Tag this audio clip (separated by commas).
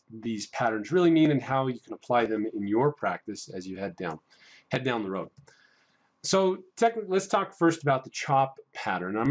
Speech